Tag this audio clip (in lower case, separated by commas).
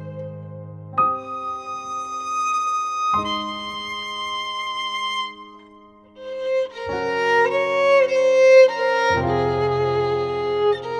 musical instrument, piano, bowed string instrument, violin, music, keyboard (musical)